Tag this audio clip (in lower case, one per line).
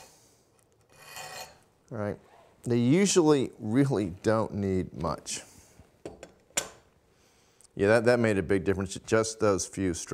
filing (rasp)
rub